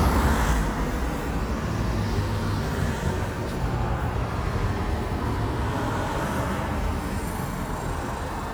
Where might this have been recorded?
on a street